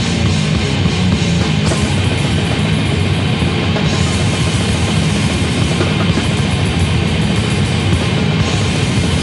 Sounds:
music

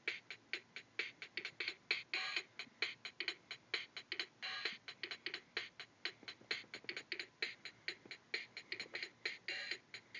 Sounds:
music
musical instrument

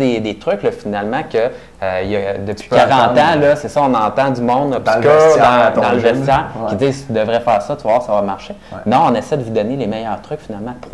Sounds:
speech

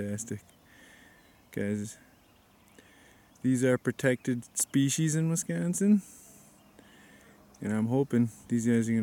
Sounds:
speech
outside, rural or natural

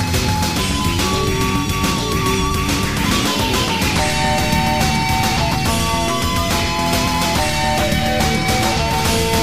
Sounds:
music

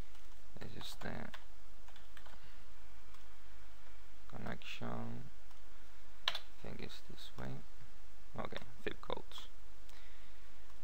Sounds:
speech

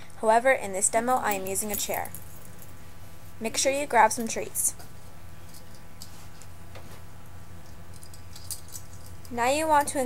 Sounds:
speech

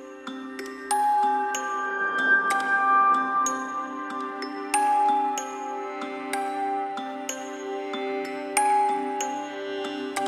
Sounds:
music

